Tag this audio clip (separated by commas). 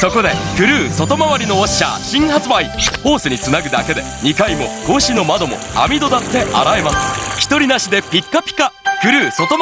Chink, Music, Speech